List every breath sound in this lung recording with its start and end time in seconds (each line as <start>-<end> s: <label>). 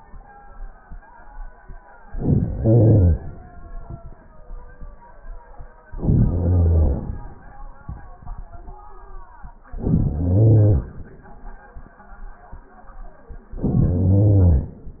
2.02-3.54 s: inhalation
5.89-7.42 s: inhalation
9.61-11.13 s: inhalation
13.44-14.87 s: inhalation